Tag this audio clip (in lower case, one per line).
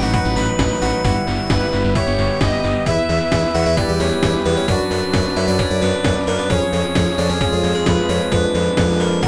music